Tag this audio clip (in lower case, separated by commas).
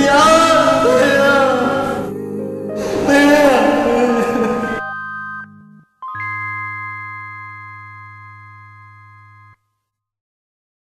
music, speech